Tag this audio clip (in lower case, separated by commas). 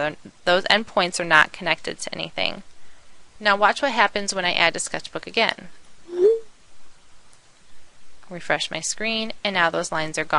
speech